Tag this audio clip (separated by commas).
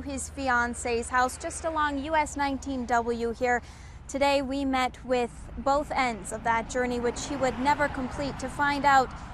Vehicle, Speech